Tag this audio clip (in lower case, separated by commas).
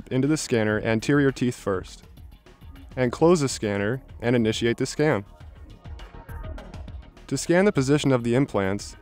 speech, music